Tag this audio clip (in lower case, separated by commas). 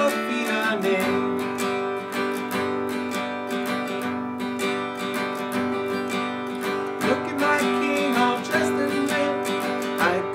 singing, plucked string instrument, guitar, strum, music, musical instrument